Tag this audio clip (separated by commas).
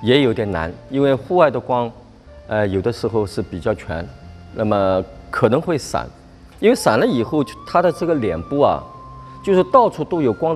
Speech, Music